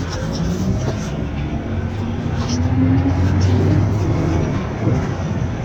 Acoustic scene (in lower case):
bus